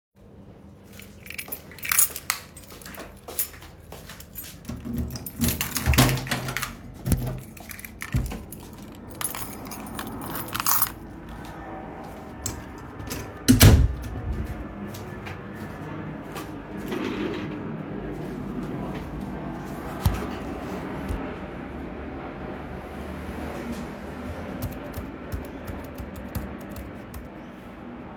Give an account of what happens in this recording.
I walk to my office door and unlock it with the keychain. I put the keychain on a hook and close the door afterwards. Then I move my office chair, sit down at the table and start typing on the keyboard. Airplane taking off in the distance (window was open).